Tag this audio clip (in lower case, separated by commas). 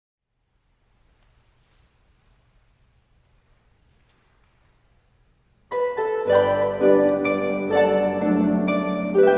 playing harp